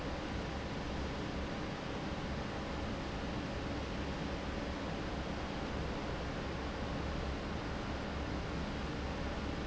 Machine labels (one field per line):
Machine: fan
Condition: normal